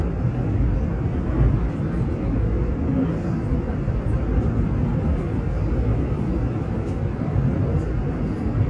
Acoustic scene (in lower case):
subway train